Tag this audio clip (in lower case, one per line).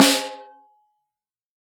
percussion
drum
musical instrument
music
snare drum